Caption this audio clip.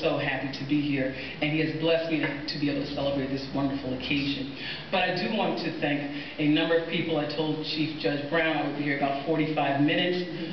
Woman giving a speech